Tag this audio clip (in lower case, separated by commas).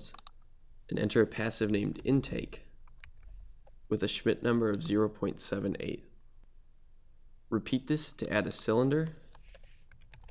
speech